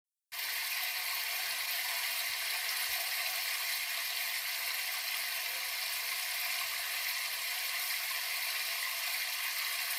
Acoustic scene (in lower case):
restroom